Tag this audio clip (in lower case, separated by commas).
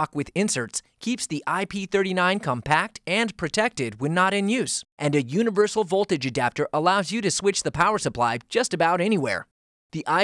speech